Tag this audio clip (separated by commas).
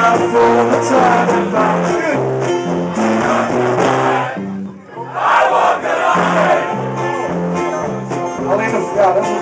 Music, Speech